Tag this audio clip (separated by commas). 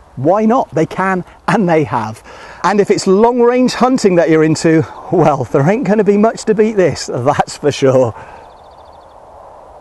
Speech